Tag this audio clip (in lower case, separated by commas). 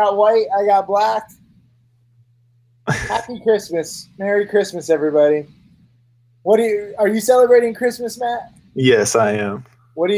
speech, inside a small room